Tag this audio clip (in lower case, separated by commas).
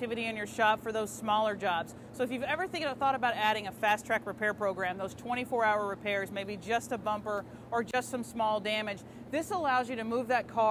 speech